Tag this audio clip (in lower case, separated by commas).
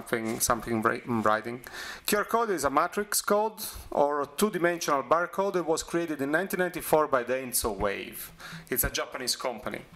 speech